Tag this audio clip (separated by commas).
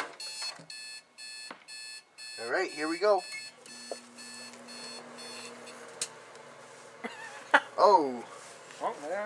Microwave oven, Speech, inside a small room